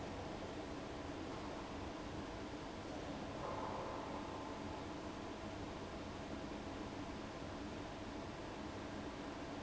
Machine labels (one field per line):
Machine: fan